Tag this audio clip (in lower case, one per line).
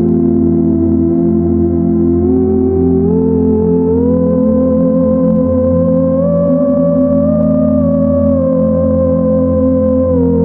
playing theremin